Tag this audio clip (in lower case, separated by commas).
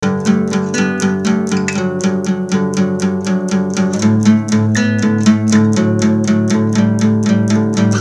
musical instrument, guitar, acoustic guitar, plucked string instrument, music